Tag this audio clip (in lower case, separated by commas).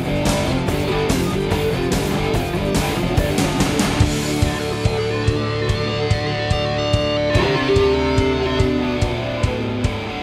guitar, acoustic guitar, strum, plucked string instrument, musical instrument, bass guitar, music